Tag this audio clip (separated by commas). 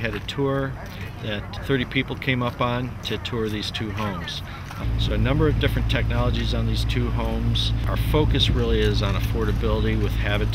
Speech